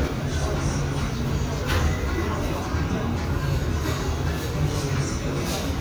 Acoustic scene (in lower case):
restaurant